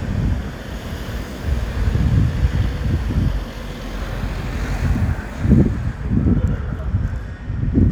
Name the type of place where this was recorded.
street